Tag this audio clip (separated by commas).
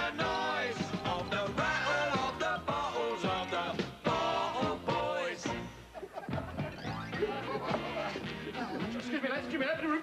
Music, Speech